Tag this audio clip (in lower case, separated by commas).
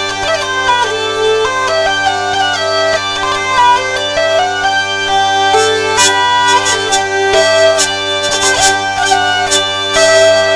music, musical instrument, plucked string instrument